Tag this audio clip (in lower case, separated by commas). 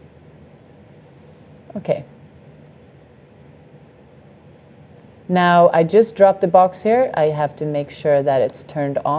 speech